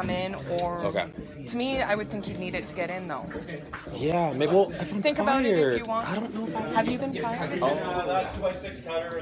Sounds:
Speech

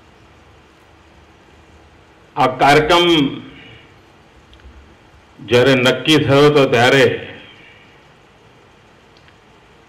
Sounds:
Male speech, Speech, Narration

